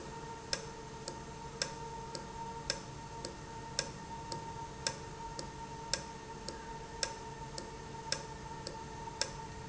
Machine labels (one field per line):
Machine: valve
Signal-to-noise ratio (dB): 0 dB